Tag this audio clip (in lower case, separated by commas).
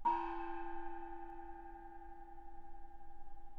musical instrument, music, percussion, gong